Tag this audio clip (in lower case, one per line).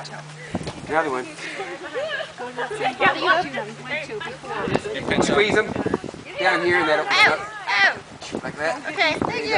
speech